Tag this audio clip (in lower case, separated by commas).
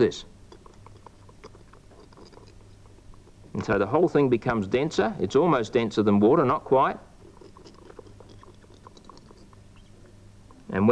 inside a small room, speech